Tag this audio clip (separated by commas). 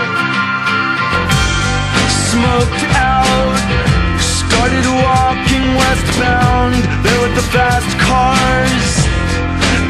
Music